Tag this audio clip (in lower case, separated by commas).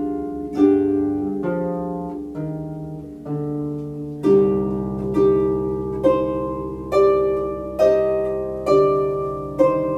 bowed string instrument, playing harp, harp